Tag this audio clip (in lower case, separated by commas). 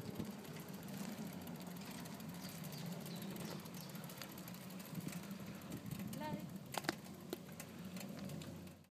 bicycle, vehicle